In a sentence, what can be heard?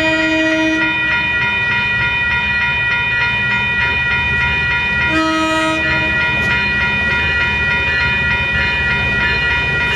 A train horn blowing and alarm bells ringing